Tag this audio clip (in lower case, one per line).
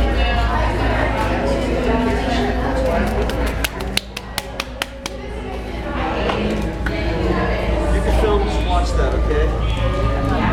inside a public space
music
speech